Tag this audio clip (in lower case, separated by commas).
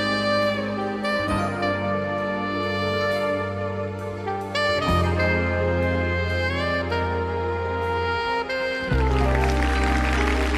music, saxophone, playing saxophone